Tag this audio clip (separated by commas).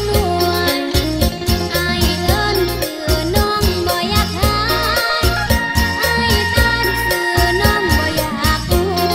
Music, Dance music